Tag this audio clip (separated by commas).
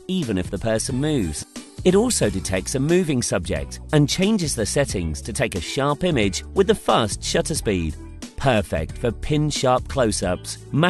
Speech, Music